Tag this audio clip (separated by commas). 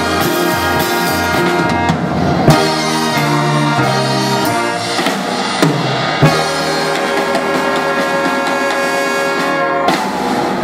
Music, Orchestra, Jazz